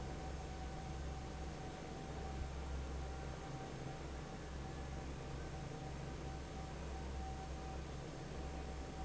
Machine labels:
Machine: fan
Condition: normal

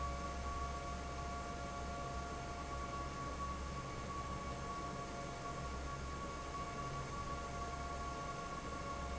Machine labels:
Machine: fan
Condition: normal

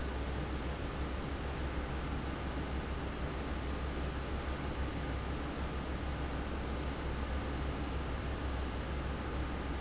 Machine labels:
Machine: fan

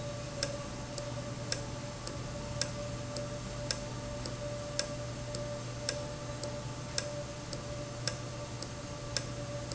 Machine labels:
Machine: valve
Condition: normal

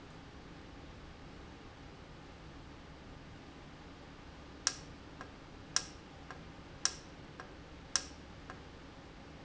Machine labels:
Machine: valve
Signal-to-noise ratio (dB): 6 dB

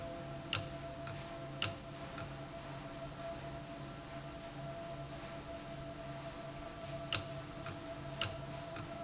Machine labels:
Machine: valve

